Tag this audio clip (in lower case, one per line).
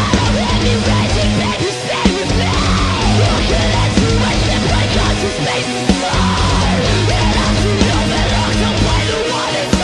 music